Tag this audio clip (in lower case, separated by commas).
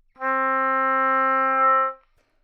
music, woodwind instrument, musical instrument